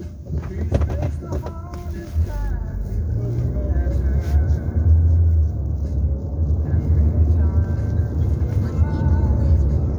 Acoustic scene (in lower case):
car